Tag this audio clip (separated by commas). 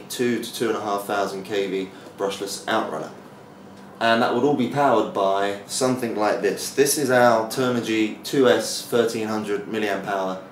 Speech